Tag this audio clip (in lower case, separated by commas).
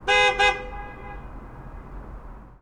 alarm, vehicle, car, honking, motor vehicle (road)